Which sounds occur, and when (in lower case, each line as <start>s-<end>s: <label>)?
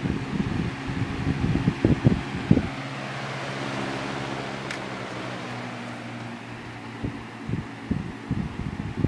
0.0s-9.0s: mechanical fan
0.0s-9.0s: wind noise (microphone)
4.7s-4.8s: generic impact sounds
5.8s-5.9s: generic impact sounds
6.2s-6.3s: generic impact sounds